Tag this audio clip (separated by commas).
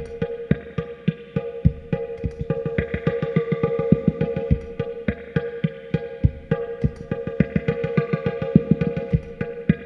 Music